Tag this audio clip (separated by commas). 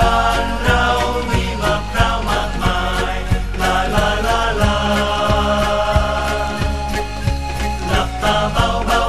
Funny music, Music